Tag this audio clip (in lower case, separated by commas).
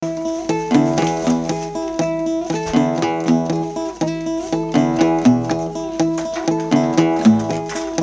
musical instrument, acoustic guitar, music, guitar, plucked string instrument